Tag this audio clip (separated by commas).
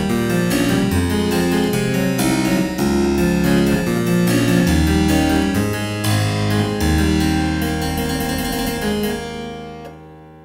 Music, Musical instrument, Harpsichord